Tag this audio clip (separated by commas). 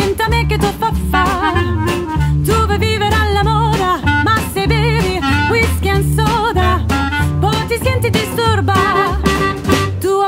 Music, Swing music, Singing, Jazz